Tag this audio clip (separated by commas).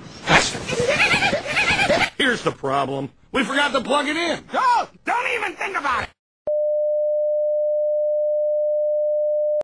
Speech